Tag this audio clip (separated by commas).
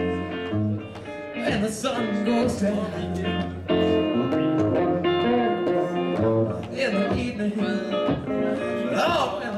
Music, Blues